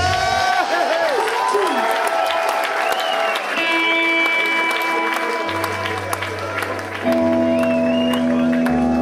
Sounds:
Speech, Music

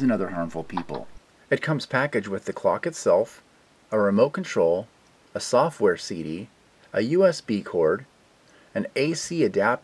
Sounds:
Speech

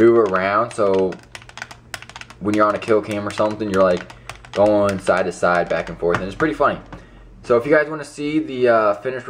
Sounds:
Speech

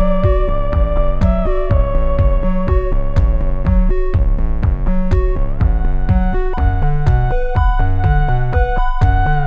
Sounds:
playing theremin

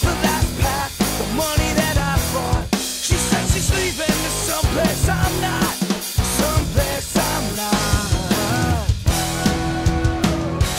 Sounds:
Music, Grunge

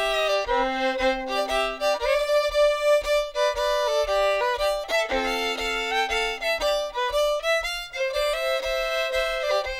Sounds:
Music, Musical instrument, fiddle

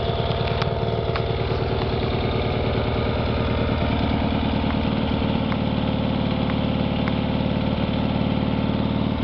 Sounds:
Idling, Engine, Medium engine (mid frequency)

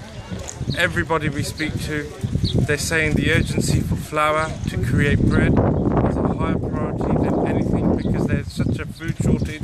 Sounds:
Speech, Animal

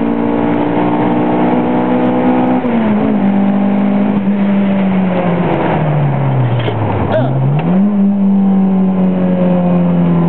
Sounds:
Vehicle, Car

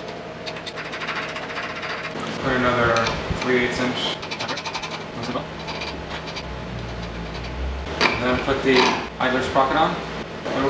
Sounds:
Speech, inside a large room or hall

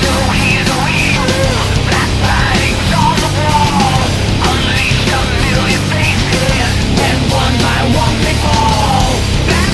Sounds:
Rhythm and blues, Music, Theme music

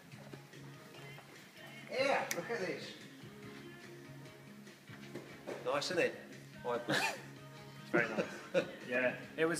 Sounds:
Music, Speech, Field recording

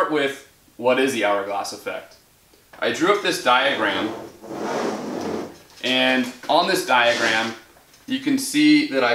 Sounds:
Speech

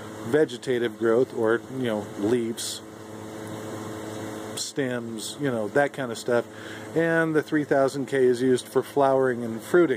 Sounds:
inside a large room or hall, Mechanical fan, Speech

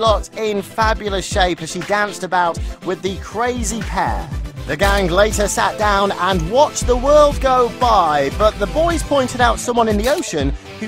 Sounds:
Music, Speech

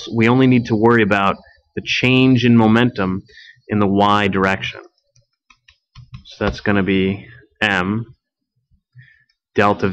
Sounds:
Speech

